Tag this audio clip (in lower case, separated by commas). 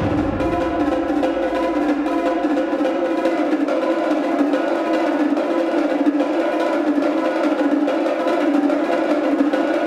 music, percussion